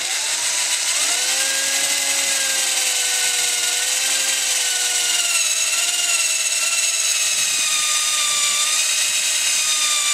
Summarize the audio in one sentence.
Power tools drilling